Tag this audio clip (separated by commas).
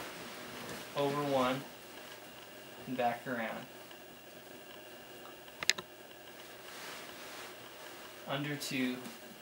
inside a small room, Speech